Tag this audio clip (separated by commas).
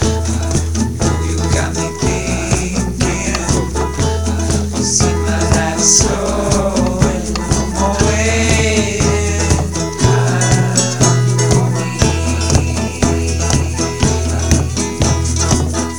Music, Musical instrument, Plucked string instrument, Guitar